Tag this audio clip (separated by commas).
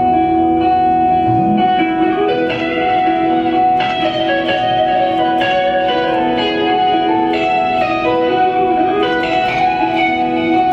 Music